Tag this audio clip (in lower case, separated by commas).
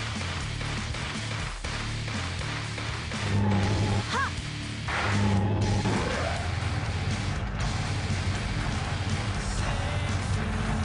music